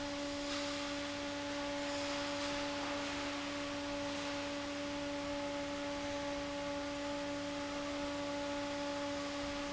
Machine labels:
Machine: fan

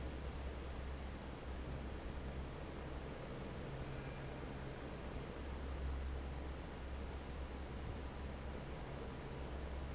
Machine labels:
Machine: fan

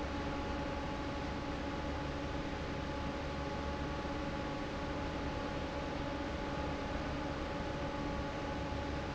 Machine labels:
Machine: fan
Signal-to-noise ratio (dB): -6 dB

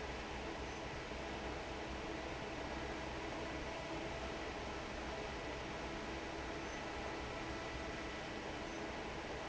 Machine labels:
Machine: fan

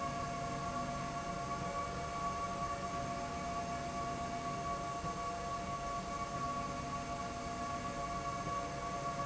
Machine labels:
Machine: slide rail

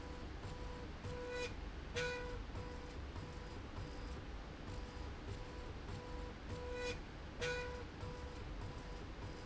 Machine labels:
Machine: slide rail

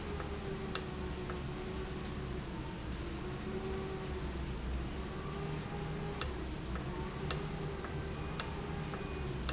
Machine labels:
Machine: valve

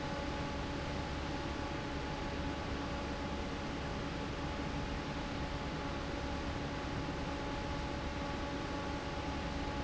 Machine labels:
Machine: fan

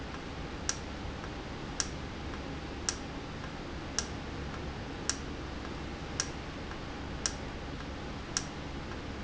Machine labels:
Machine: valve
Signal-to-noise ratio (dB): -6 dB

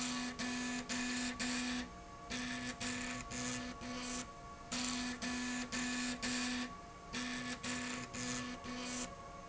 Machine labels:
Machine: slide rail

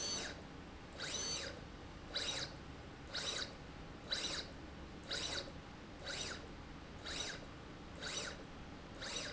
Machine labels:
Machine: slide rail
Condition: abnormal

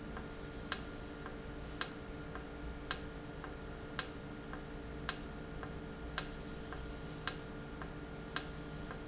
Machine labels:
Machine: valve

